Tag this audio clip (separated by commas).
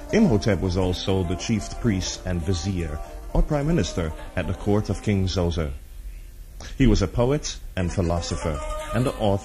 Music